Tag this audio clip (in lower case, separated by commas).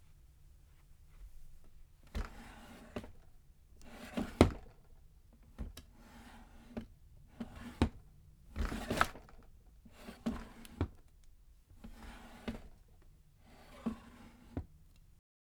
home sounds, drawer open or close